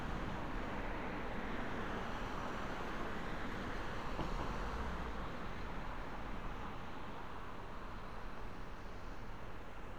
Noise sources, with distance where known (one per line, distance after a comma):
engine of unclear size